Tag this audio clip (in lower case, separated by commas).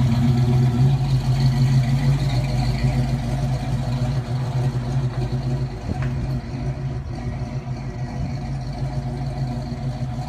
car, vehicle, engine